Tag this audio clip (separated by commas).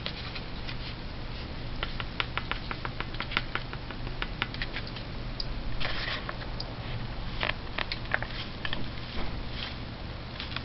dishes, pots and pans